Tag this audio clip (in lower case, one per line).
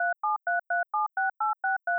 telephone
alarm